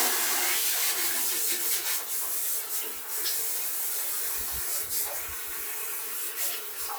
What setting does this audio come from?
restroom